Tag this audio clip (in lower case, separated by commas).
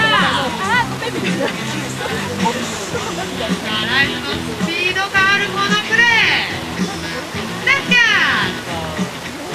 music, speech